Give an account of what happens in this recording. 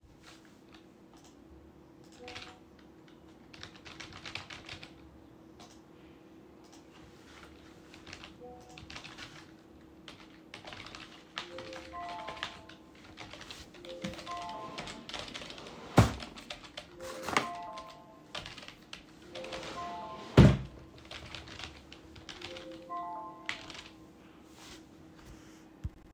I typed on the keyboard at the desk while a ringing alert played. During the ringing, I opened and closed a drawer near the desk. All three target classes overlapped for a noticeable time interval.